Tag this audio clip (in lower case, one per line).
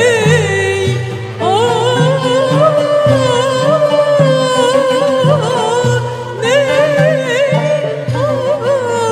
fiddle
musical instrument
music